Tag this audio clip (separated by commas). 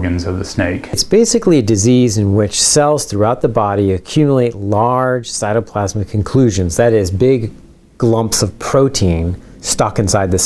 Speech, inside a small room